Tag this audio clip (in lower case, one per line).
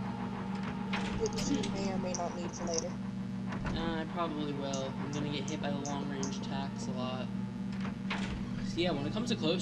speech